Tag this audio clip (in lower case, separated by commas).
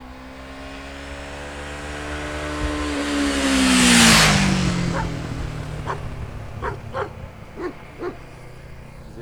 engine, vehicle, motor vehicle (road), motorcycle